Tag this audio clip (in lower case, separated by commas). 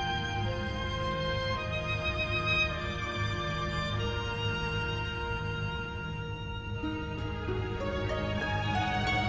music